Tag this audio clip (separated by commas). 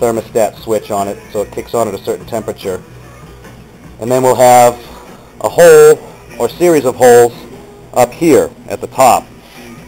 Speech, Music